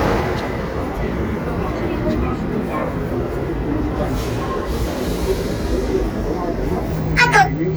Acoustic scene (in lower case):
subway station